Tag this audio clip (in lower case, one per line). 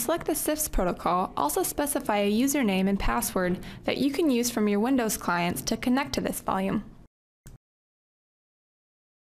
inside a small room
speech